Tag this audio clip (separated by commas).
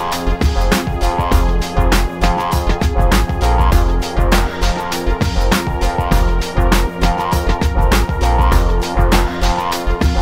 Music